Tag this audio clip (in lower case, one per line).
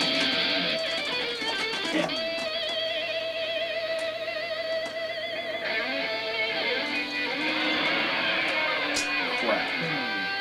music
guitar
electric guitar
plucked string instrument
musical instrument
speech